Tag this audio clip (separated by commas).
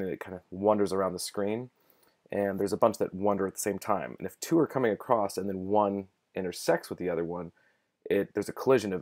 Speech